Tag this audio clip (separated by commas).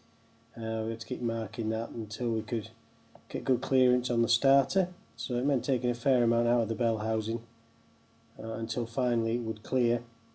Speech